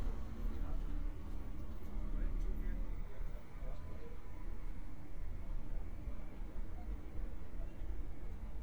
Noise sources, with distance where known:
background noise

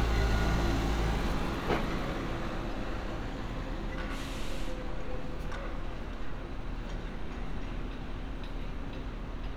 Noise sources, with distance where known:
engine of unclear size, near

